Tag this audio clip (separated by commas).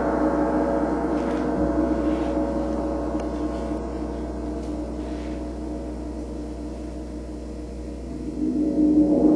Music, Gong